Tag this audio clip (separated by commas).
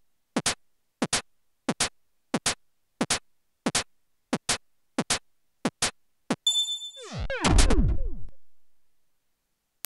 Ping